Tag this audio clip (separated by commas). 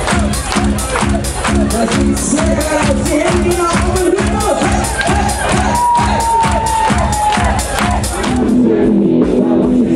Narration, Male speech, Speech, Music